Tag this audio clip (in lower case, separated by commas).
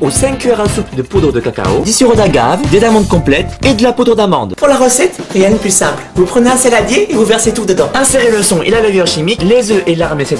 speech, music